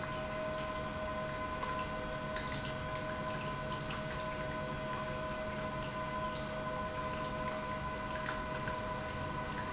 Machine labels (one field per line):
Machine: pump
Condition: normal